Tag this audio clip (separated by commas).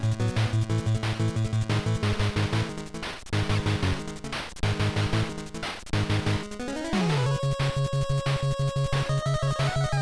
Music